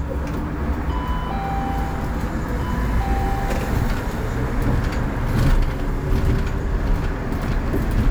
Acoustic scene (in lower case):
bus